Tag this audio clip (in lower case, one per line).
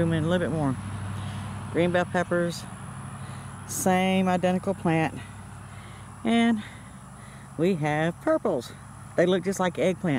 speech